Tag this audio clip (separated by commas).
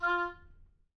Wind instrument, Music, Musical instrument